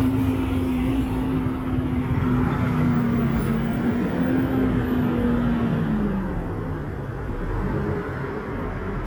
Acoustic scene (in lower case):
street